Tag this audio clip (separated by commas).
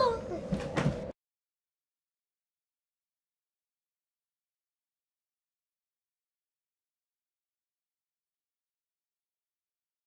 Speech